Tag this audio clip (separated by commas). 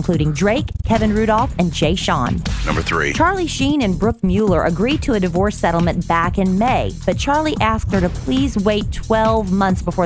Music, Speech